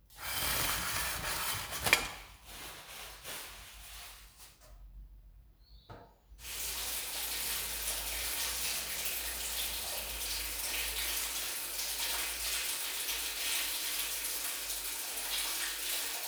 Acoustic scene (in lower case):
restroom